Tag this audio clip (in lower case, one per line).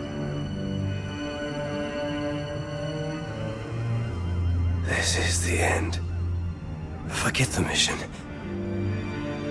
speech
music